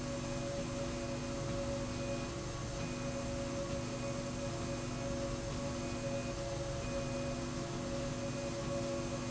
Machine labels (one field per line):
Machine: slide rail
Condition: normal